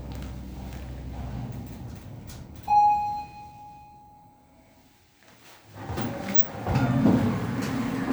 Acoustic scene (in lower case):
elevator